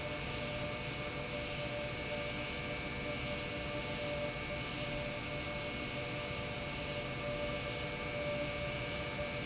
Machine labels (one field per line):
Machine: pump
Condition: normal